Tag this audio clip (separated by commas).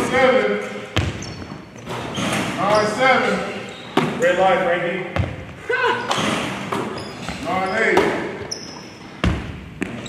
Basketball bounce, Speech